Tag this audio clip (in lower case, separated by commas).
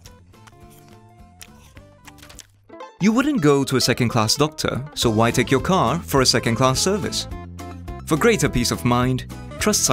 speech, music